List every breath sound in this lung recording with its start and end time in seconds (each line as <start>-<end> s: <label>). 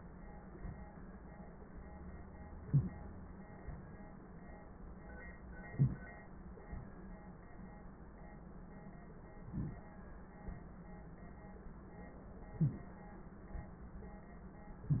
2.62-3.11 s: inhalation
5.66-6.15 s: inhalation
9.45-9.94 s: inhalation
12.56-13.05 s: inhalation